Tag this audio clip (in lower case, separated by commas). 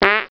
fart